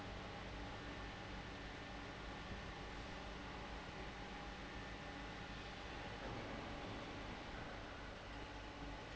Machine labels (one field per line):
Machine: fan